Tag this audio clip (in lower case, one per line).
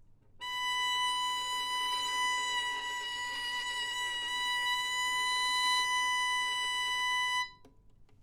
music
musical instrument
bowed string instrument